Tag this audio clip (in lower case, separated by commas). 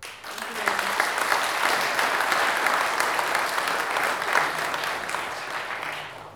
human group actions, applause